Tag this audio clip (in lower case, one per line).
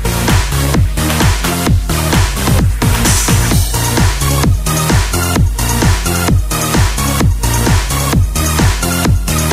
music
sampler